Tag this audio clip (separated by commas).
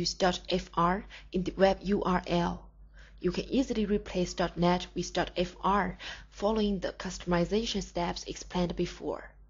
Speech